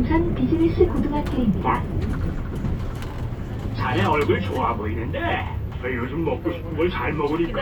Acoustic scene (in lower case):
bus